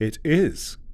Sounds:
speech, man speaking, human voice

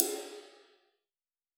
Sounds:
crash cymbal, cymbal, music, percussion, musical instrument

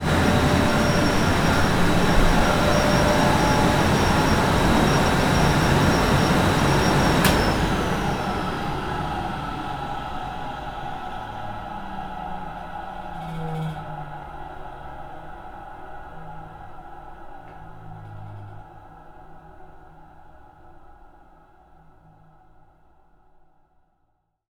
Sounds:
mechanisms, mechanical fan

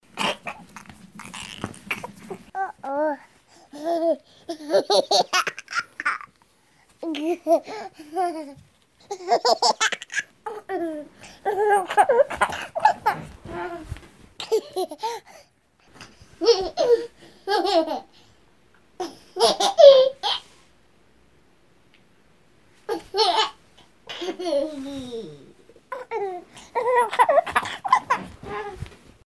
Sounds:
laughter, human voice

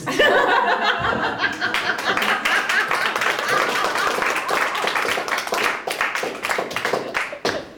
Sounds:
applause, human voice, crowd, human group actions, laughter

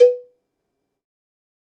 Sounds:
cowbell, bell

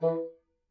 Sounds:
musical instrument, music, woodwind instrument

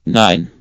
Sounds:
human voice, man speaking, speech

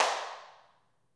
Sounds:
clapping, hands

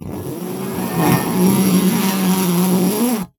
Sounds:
buzz, wild animals, insect, animal

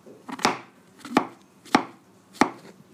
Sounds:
home sounds

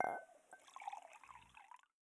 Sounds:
glass, dishes, pots and pans, domestic sounds, clink

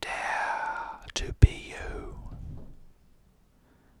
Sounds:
whispering, human voice

